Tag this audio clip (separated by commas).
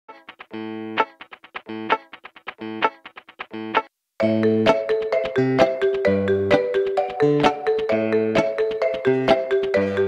Music